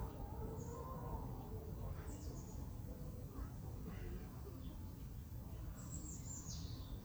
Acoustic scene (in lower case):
residential area